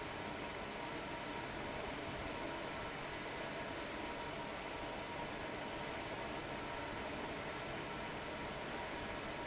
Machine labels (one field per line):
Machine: fan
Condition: abnormal